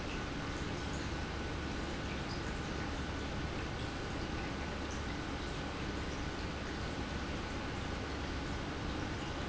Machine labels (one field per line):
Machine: pump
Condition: normal